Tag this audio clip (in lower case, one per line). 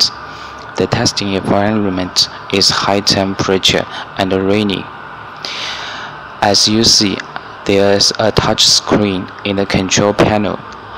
speech